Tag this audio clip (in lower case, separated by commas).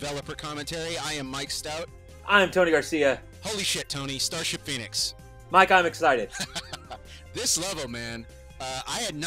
music, speech